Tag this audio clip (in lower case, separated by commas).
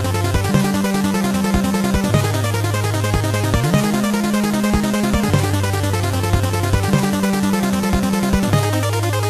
music, video game music